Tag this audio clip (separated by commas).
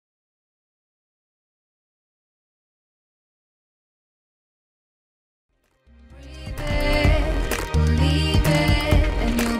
Music